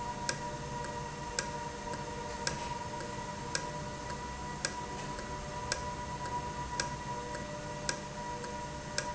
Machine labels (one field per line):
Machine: valve